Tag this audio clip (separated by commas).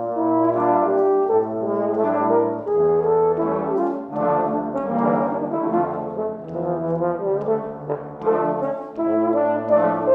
Brass instrument, Trombone